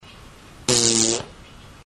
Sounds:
Fart

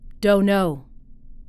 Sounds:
Female speech, Speech, Human voice

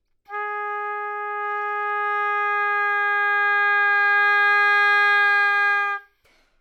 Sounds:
Music, woodwind instrument, Musical instrument

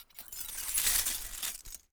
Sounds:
Glass

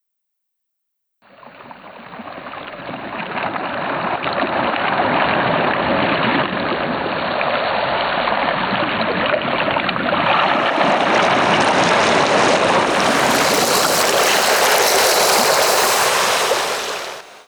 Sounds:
Ocean, Waves, Water

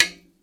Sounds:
Tap

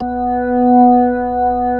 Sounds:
Keyboard (musical), Musical instrument, Organ, Music

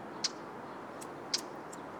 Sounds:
Bird, Wild animals, Animal

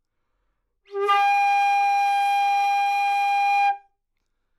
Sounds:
Musical instrument, woodwind instrument, Music

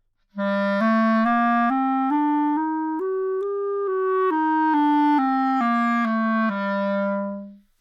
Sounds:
Musical instrument, woodwind instrument, Music

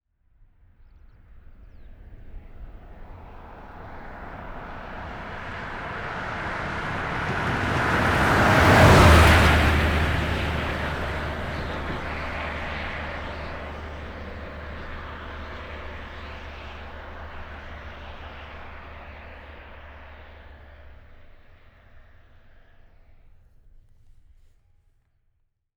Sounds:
Car passing by, Vehicle, Car, Motor vehicle (road)

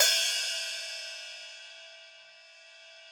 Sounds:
Musical instrument, Music, Cymbal, Hi-hat, Percussion

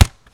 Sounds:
thud

